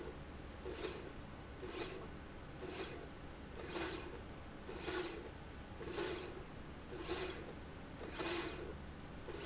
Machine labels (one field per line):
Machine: slide rail